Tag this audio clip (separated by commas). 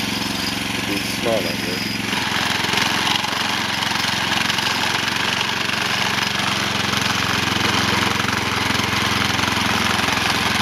Speech